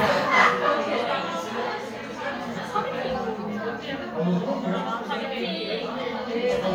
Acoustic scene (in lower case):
crowded indoor space